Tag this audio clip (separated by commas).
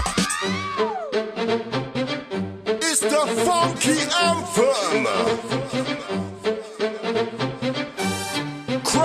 Speech, Music